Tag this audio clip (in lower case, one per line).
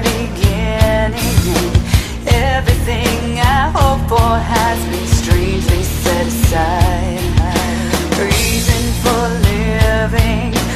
music